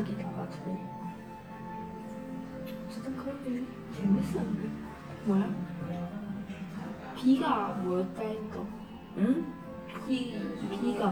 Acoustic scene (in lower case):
crowded indoor space